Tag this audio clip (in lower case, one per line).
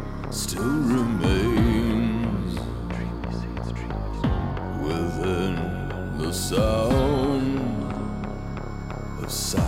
music
sound effect